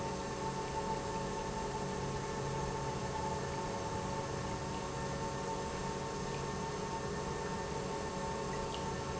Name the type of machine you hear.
pump